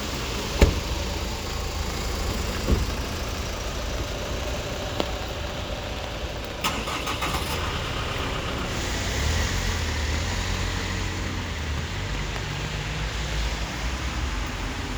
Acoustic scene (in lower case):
street